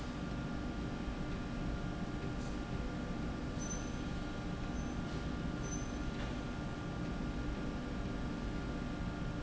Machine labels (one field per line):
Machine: slide rail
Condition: normal